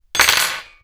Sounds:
Domestic sounds, silverware

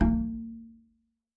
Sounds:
Bowed string instrument, Music, Musical instrument

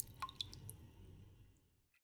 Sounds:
Raindrop, Water, Rain

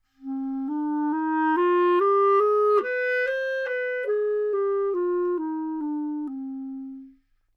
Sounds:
Music, Musical instrument, Wind instrument

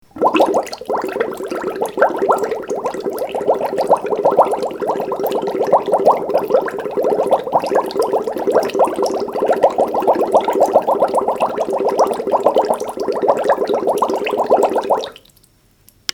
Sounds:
Water

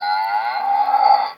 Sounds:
Animal

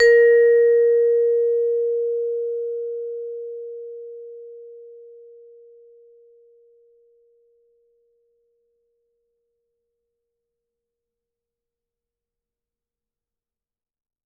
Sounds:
Mallet percussion, Musical instrument, Music, Percussion

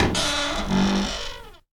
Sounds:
Domestic sounds, Cupboard open or close, Door

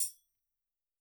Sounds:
Percussion, Tambourine, Music, Musical instrument

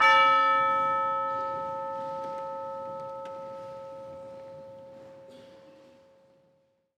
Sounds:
Music, Percussion, Musical instrument

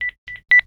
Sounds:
Telephone, Alarm

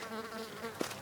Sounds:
Buzz, Wild animals, Animal, Insect

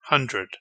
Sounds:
Male speech, Speech, Human voice

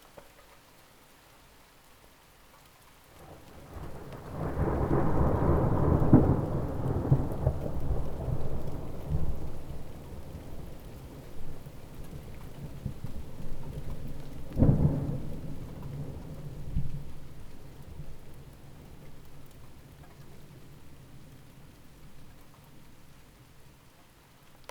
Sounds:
Thunderstorm, Water, Rain, Thunder

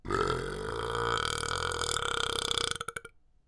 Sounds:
eructation

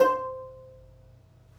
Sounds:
Plucked string instrument, Music, Musical instrument

